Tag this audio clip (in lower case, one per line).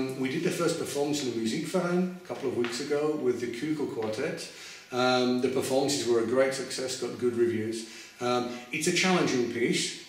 speech